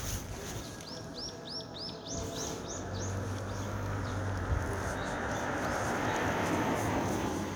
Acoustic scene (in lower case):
residential area